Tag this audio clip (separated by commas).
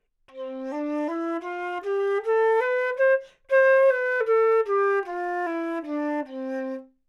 Music, Musical instrument, woodwind instrument